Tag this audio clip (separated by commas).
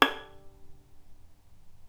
Bowed string instrument, Music, Musical instrument